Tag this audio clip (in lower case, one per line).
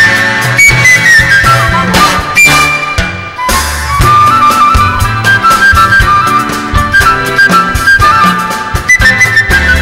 music
flute